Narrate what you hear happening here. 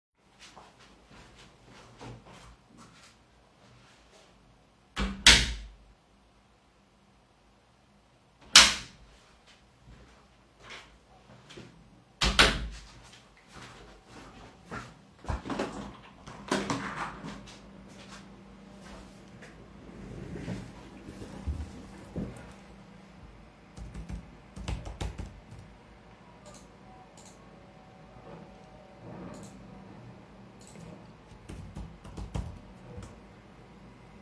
I opened the door then opened the window, sat on the chair and started typing ,on a keyboard